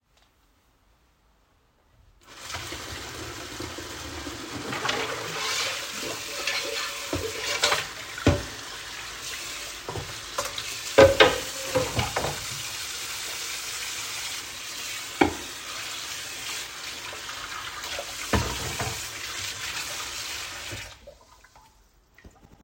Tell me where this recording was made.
kitchen